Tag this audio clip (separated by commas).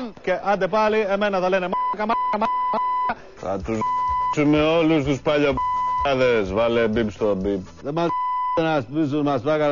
Beep, Speech